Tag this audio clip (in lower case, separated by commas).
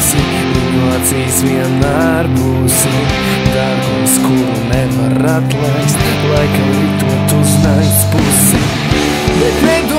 music, exciting music